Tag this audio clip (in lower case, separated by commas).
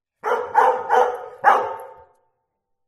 bark, dog, pets, animal